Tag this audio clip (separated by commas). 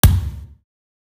Thump